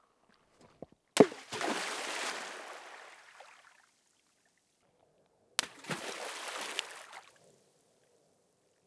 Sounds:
liquid, splatter

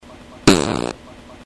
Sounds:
fart

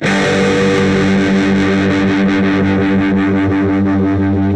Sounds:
guitar, electric guitar, musical instrument, plucked string instrument, music

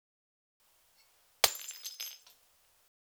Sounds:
shatter, glass

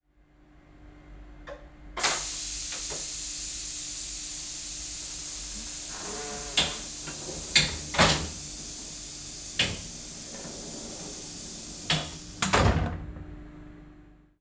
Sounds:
train, rail transport, vehicle

